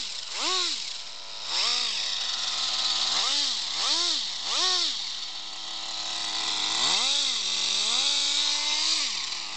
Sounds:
vroom, Car, Engine

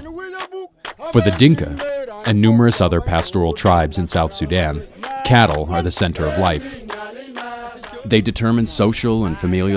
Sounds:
Speech

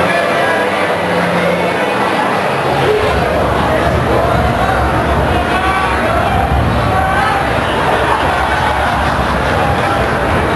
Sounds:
Speech

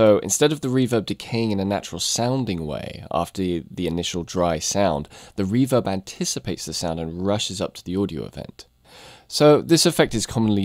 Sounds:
Speech

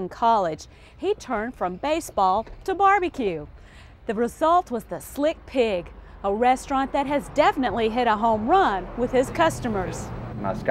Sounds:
Speech

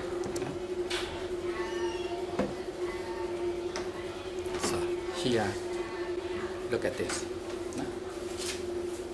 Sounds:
inside a small room, Speech

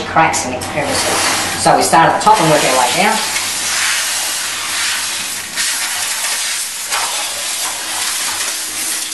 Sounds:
Hiss, Steam

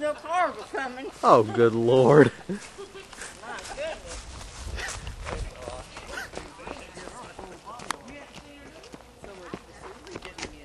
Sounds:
Speech

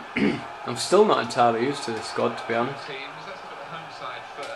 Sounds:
Speech

